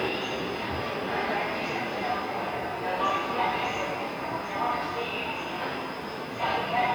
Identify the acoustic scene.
subway station